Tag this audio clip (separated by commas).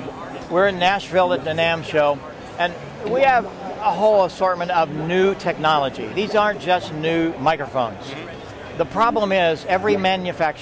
Speech